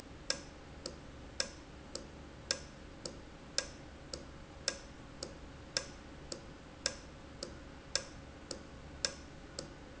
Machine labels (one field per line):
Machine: valve